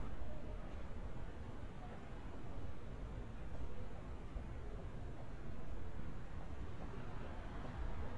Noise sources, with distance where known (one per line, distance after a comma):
non-machinery impact